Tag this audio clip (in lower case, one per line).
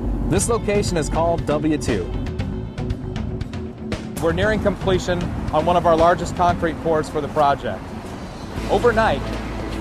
speech
music